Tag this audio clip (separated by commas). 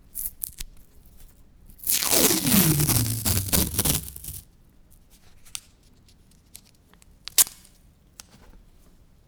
Tearing, Domestic sounds, duct tape